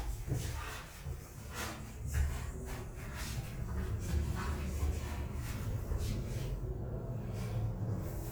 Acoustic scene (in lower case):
elevator